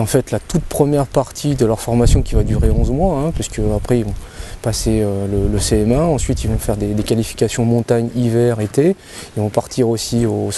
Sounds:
Speech

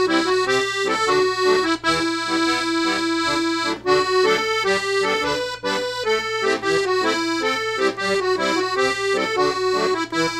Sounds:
playing accordion

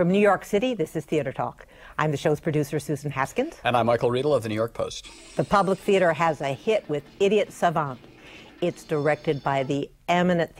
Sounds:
Music, inside a large room or hall, Speech

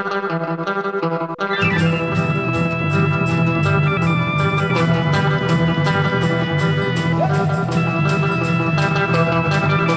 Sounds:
Punk rock

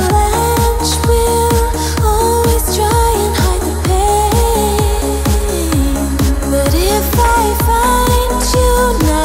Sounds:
Music

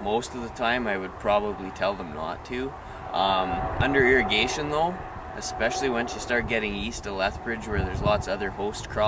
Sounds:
Speech

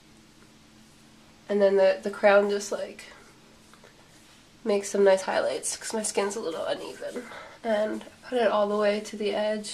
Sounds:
Speech

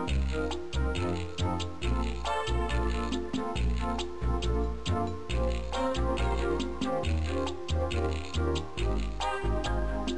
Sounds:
Music, Video game music

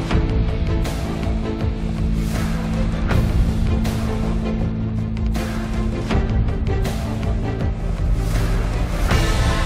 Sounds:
Music

